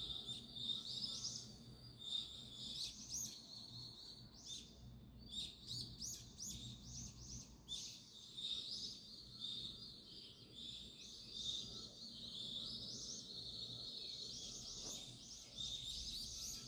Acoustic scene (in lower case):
park